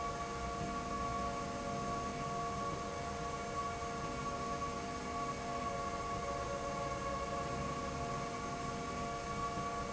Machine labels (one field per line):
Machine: slide rail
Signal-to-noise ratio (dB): -6 dB